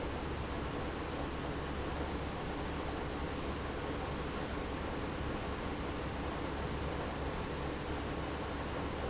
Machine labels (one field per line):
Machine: pump